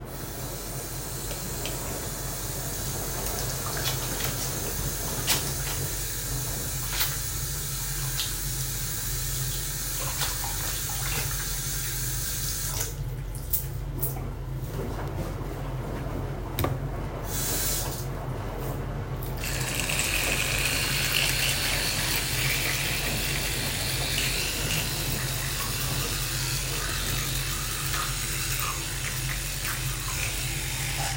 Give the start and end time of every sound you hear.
0.1s-13.1s: running water
17.0s-18.1s: running water

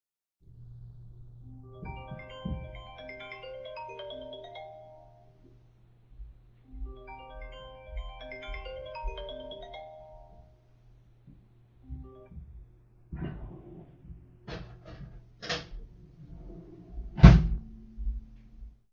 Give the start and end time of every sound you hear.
1.4s-12.3s: phone ringing
13.1s-18.7s: wardrobe or drawer

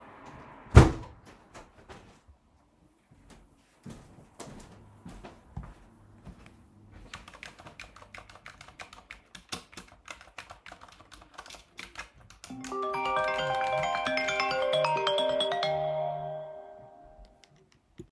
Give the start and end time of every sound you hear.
0.6s-2.1s: window
1.4s-7.2s: footsteps
7.1s-16.9s: keyboard typing
12.4s-17.2s: phone ringing

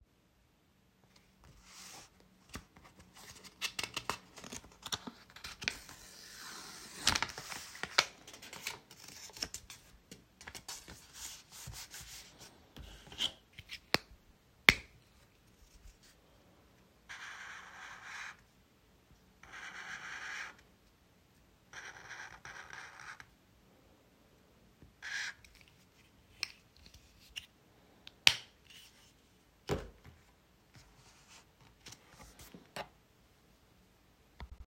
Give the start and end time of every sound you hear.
13.8s-15.5s: light switch
27.5s-29.0s: light switch

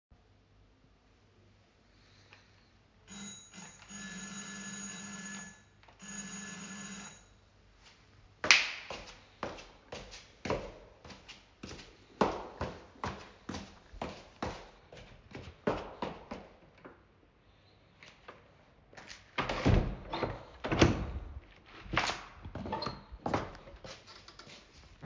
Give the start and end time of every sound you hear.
3.1s-7.4s: bell ringing
8.4s-16.4s: footsteps
18.9s-24.0s: door

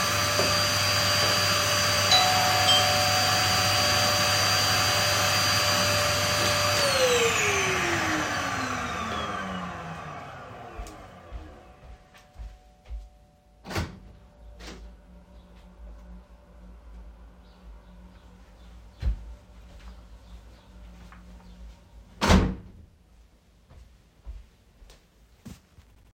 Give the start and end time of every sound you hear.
0.0s-11.9s: vacuum cleaner
2.0s-3.7s: bell ringing
10.7s-13.3s: footsteps
13.6s-15.0s: door
19.0s-21.9s: footsteps
22.0s-22.2s: footsteps
22.1s-22.7s: door
23.5s-25.7s: footsteps

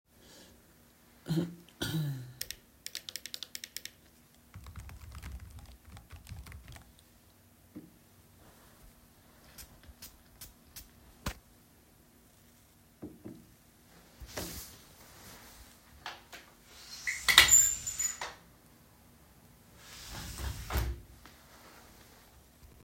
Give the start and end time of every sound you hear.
2.7s-7.3s: keyboard typing
15.9s-18.6s: window
19.7s-21.5s: window

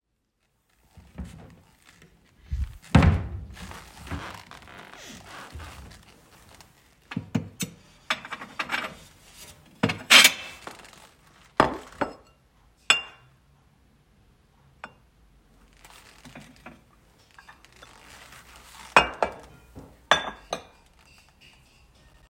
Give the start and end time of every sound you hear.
1.1s-6.4s: wardrobe or drawer
7.1s-13.4s: cutlery and dishes
14.7s-15.0s: cutlery and dishes
15.8s-20.9s: cutlery and dishes

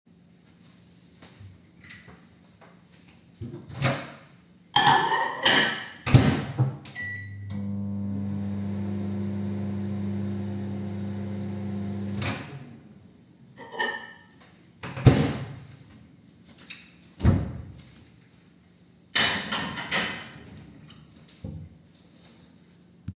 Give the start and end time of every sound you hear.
1.0s-3.4s: footsteps
3.4s-3.7s: light switch
3.7s-13.2s: microwave
4.6s-6.0s: cutlery and dishes
13.6s-14.4s: cutlery and dishes
13.6s-14.2s: microwave
14.7s-15.8s: microwave
15.8s-19.1s: footsteps
16.6s-17.8s: door
19.0s-20.7s: cutlery and dishes
20.7s-23.1s: footsteps
21.2s-21.7s: light switch

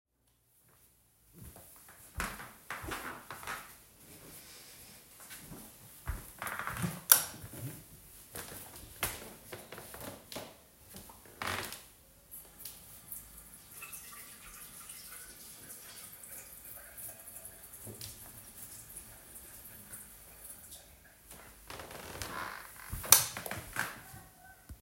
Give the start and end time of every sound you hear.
1.4s-12.6s: footsteps
7.0s-7.5s: light switch
12.6s-21.7s: running water
21.7s-23.0s: footsteps
23.0s-23.5s: light switch
23.0s-24.8s: footsteps

